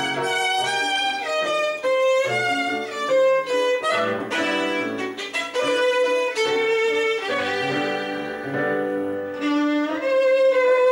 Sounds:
fiddle, musical instrument, pizzicato, music

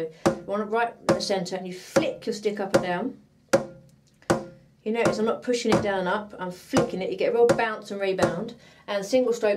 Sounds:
drum, percussion, rimshot

